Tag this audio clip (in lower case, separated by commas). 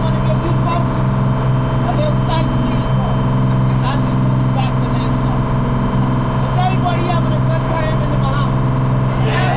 speedboat, speech, vehicle, water vehicle